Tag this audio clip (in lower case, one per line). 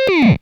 musical instrument
music